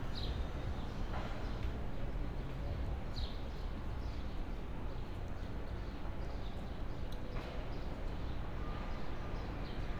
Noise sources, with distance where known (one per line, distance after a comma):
background noise